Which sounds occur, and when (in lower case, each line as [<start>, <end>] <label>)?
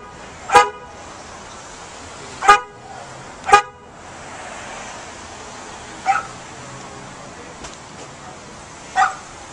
[0.00, 9.52] roadway noise
[0.42, 0.81] honking
[0.73, 2.62] car passing by
[2.40, 2.69] honking
[3.37, 3.48] tick
[3.45, 3.78] honking
[3.84, 6.81] car passing by
[6.00, 6.25] dog
[6.75, 6.81] tick
[7.62, 7.74] generic impact sounds
[7.95, 8.05] generic impact sounds
[8.91, 9.14] dog